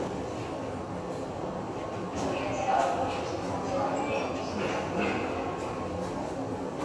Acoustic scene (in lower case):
subway station